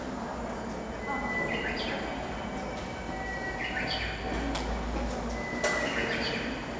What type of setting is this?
subway station